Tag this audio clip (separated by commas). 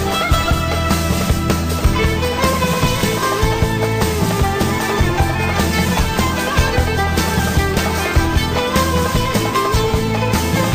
Music